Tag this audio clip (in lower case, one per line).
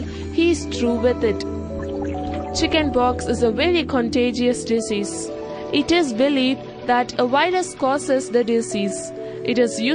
speech
music